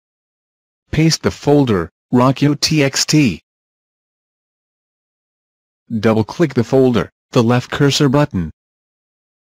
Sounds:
speech

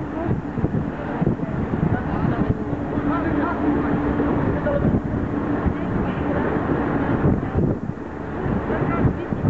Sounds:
vehicle, speech

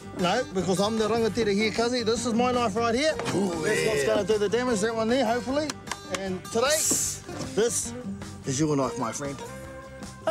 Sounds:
music, speech

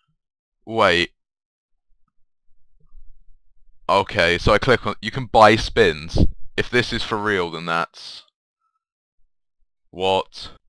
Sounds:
speech

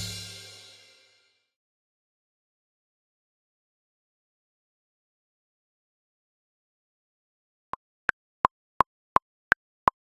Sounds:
music, snare drum, inside a small room, musical instrument

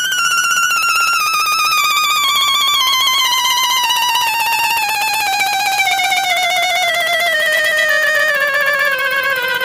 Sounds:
musical instrument, music

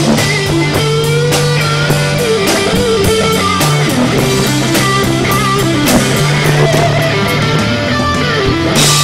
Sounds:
strum, guitar, music, plucked string instrument, acoustic guitar, musical instrument

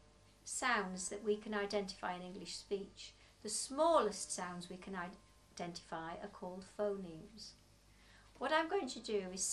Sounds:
speech

